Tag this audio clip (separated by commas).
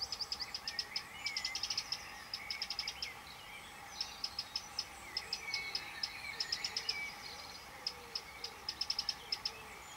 tweet, Bird